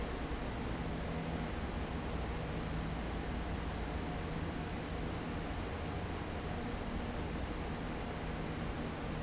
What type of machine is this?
fan